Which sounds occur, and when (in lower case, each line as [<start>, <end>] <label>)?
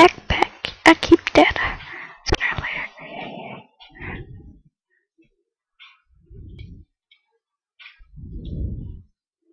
[0.00, 0.10] generic impact sounds
[0.00, 0.43] woman speaking
[0.00, 4.68] background noise
[0.33, 0.44] generic impact sounds
[0.58, 0.72] generic impact sounds
[0.83, 1.76] woman speaking
[1.81, 2.17] breathing
[2.24, 2.38] generic impact sounds
[2.37, 2.92] whispering
[2.50, 2.65] generic impact sounds
[2.99, 3.63] breathing
[3.76, 4.06] clicking
[3.92, 4.25] breathing
[4.85, 5.03] generic impact sounds
[5.16, 5.39] generic impact sounds
[5.75, 6.02] generic impact sounds
[6.24, 6.80] wind noise (microphone)
[6.53, 6.67] clicking
[7.06, 7.18] clicking
[7.76, 8.00] generic impact sounds
[8.12, 9.04] wind noise (microphone)
[8.40, 8.57] clicking